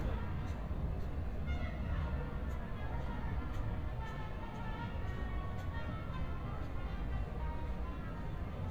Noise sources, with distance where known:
music from a fixed source, far

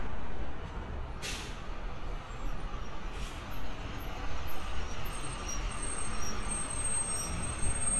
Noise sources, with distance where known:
large-sounding engine, near

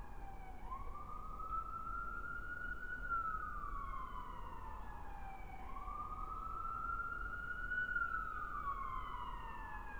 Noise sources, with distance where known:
siren

